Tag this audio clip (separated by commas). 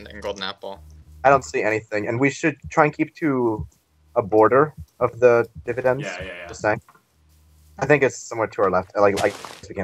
Speech